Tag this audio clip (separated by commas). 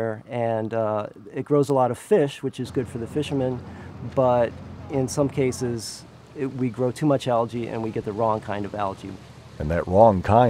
Gurgling, Speech